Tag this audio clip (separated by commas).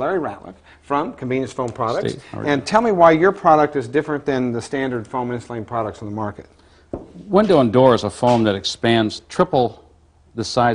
Speech